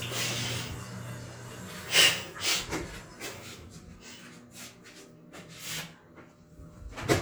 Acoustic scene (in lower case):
restroom